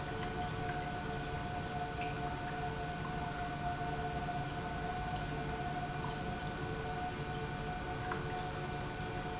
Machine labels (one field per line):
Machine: pump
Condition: normal